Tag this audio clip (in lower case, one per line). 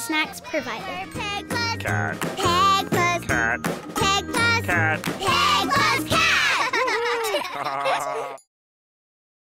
music
speech